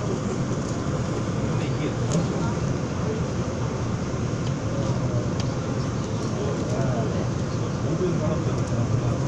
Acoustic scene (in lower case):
subway train